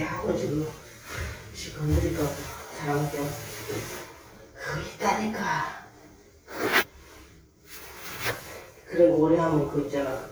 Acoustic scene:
elevator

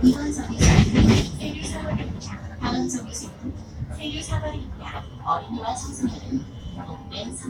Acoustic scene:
bus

